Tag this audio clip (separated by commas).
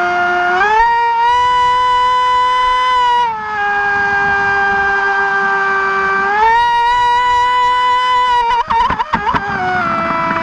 Boat